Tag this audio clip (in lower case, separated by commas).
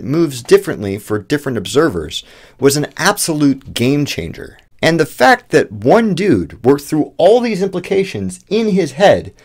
speech